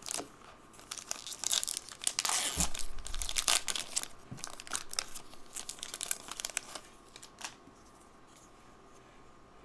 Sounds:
crumpling

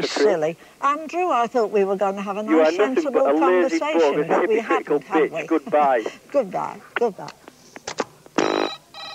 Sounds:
speech

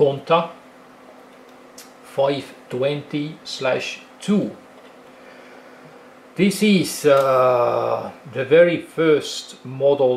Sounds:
speech

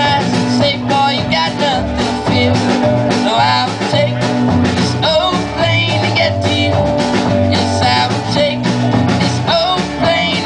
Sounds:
music

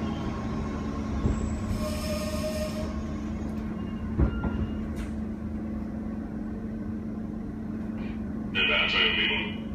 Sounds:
railroad car
train wheels squealing
rail transport
subway

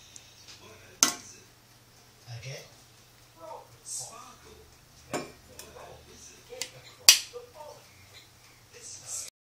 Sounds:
speech

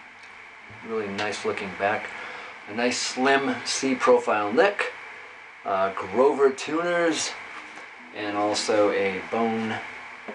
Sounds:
speech

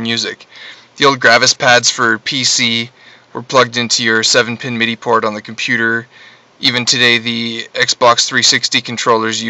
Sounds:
speech

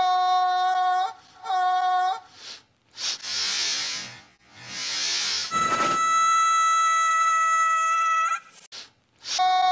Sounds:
music

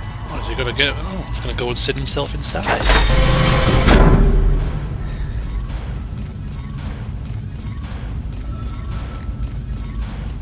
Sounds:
music
speech

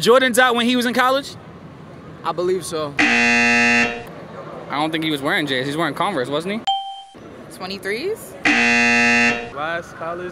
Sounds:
speech
outside, urban or man-made

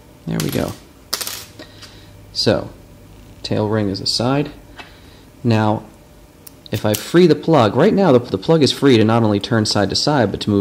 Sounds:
speech

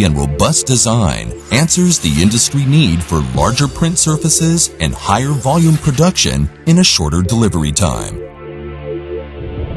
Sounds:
speech
printer
music

